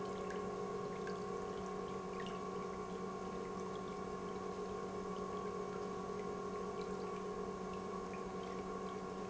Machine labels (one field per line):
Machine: pump